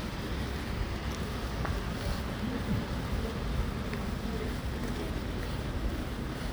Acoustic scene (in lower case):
residential area